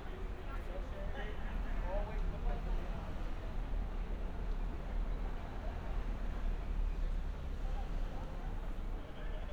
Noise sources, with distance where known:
person or small group talking, far

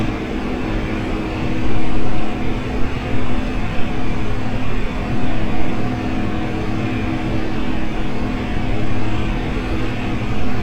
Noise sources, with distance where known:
rock drill

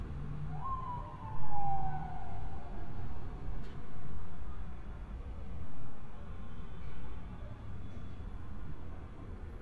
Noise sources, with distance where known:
siren, far

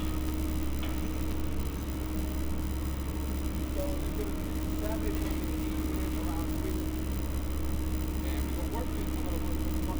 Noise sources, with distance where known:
person or small group talking

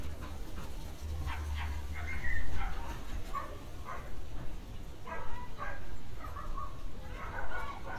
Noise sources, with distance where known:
person or small group shouting, far; dog barking or whining, near

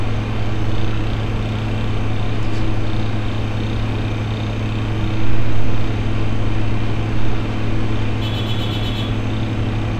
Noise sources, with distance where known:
car horn

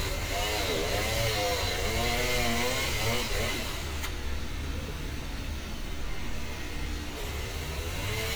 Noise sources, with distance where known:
small-sounding engine, near

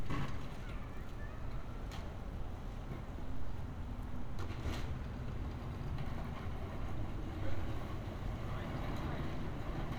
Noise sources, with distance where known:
background noise

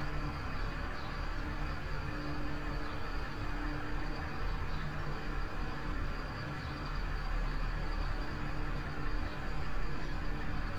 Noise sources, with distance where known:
large-sounding engine, near

